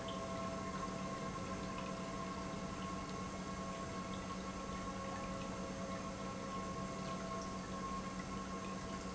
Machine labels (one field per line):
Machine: pump